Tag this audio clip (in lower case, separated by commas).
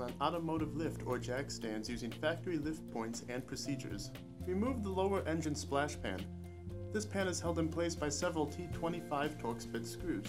music, speech